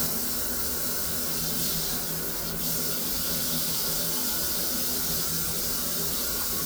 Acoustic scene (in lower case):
restroom